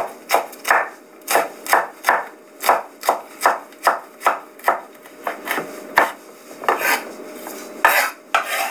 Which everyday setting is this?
kitchen